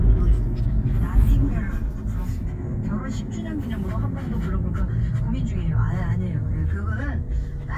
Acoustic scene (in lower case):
car